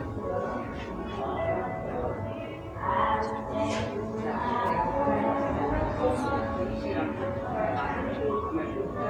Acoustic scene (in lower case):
cafe